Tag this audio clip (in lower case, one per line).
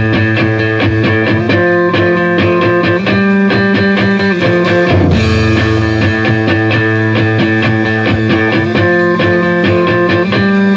music